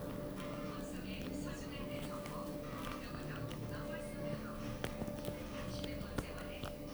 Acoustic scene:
elevator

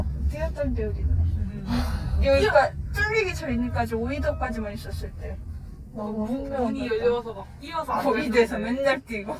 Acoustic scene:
car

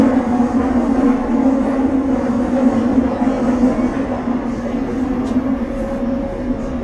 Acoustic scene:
subway train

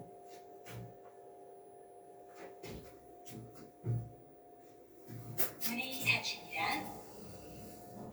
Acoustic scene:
elevator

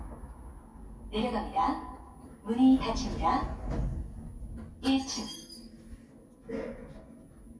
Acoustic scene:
elevator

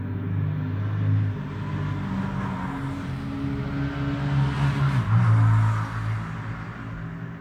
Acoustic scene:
street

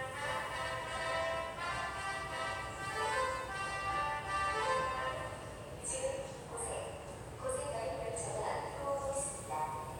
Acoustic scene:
subway station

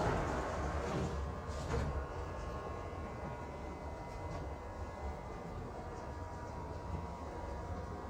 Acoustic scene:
subway train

